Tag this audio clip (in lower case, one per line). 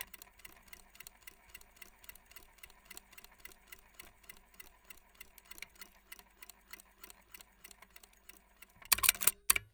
mechanisms